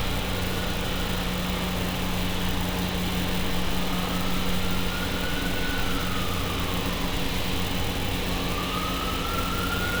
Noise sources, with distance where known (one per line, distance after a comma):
siren